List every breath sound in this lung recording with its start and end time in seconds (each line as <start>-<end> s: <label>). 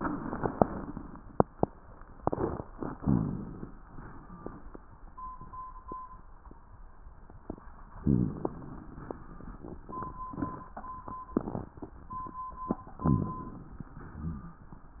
3.00-3.74 s: inhalation
3.00-3.74 s: rhonchi
3.89-4.63 s: exhalation
8.01-8.46 s: rhonchi
8.01-8.80 s: inhalation
13.04-13.49 s: rhonchi
13.04-13.87 s: inhalation
13.95-14.72 s: exhalation
13.95-14.72 s: rhonchi